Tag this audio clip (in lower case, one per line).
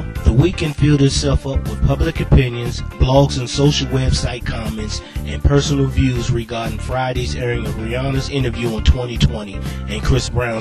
music
speech